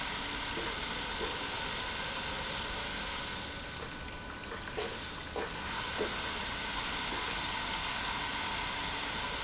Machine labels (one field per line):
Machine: pump